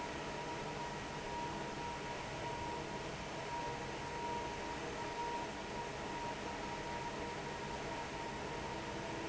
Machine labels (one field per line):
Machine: fan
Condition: normal